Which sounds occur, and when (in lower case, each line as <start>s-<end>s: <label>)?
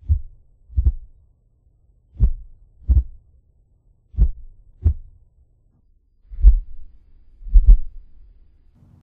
0.0s-9.0s: background noise
0.0s-0.2s: heart sounds
0.7s-1.0s: heart sounds
2.1s-2.4s: heart sounds
2.9s-3.1s: heart sounds
4.2s-4.3s: heart sounds
4.8s-5.0s: heart sounds
6.4s-6.6s: heart sounds
7.5s-7.8s: heart sounds